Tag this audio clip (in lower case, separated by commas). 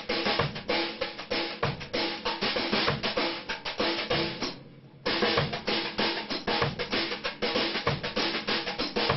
percussion, music